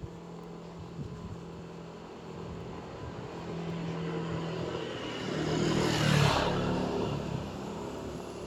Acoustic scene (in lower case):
street